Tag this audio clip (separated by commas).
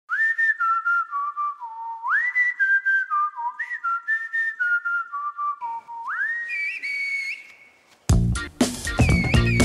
people whistling